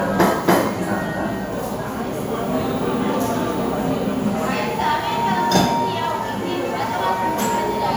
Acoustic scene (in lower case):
cafe